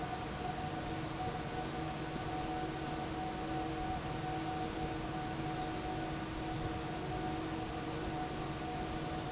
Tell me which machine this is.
fan